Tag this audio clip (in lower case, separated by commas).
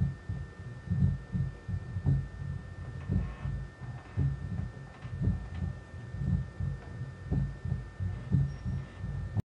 throbbing, heart sounds, hum